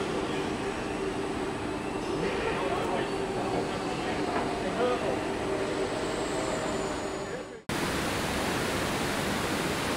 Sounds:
Speech

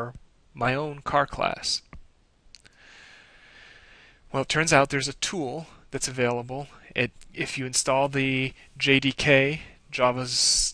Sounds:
Speech

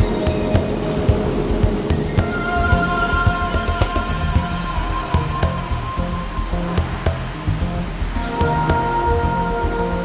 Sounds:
Music, Wind noise (microphone)

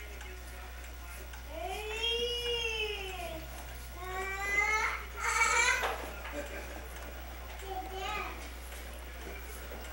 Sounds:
Speech

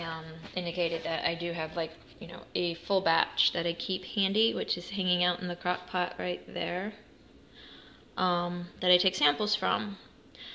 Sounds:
Speech

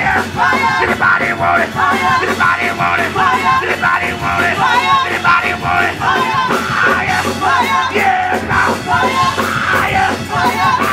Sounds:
Music

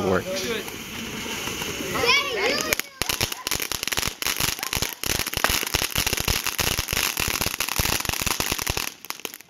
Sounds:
Fireworks, Crackle

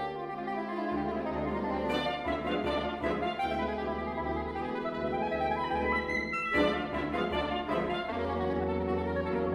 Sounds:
Musical instrument, fiddle, Music

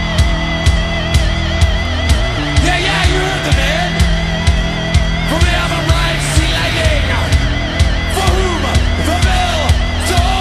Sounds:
Music

